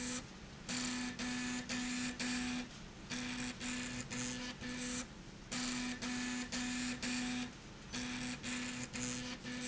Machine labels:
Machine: slide rail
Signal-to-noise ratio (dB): 6 dB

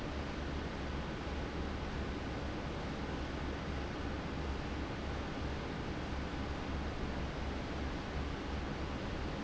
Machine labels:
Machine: fan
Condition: abnormal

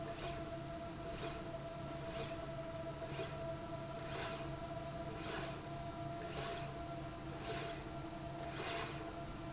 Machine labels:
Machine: slide rail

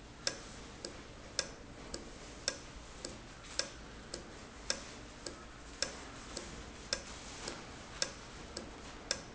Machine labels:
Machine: valve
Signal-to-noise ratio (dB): 6 dB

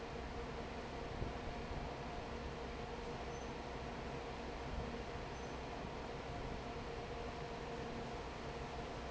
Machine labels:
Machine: fan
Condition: normal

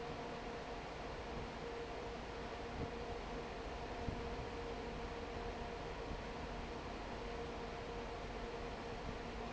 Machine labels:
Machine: fan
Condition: normal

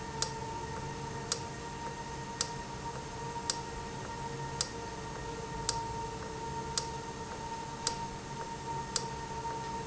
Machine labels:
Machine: valve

